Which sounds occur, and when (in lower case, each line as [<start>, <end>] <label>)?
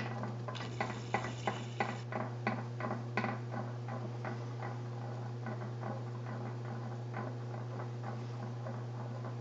[0.00, 9.40] mechanisms
[3.58, 3.86] generic impact sounds
[4.02, 4.29] generic impact sounds
[4.47, 5.14] generic impact sounds
[5.32, 6.05] generic impact sounds
[6.23, 7.21] generic impact sounds
[7.37, 7.79] generic impact sounds
[8.02, 8.44] generic impact sounds
[8.67, 9.14] generic impact sounds
[9.35, 9.40] generic impact sounds